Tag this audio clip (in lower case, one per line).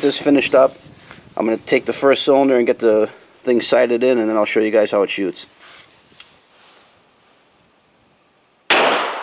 cap gun shooting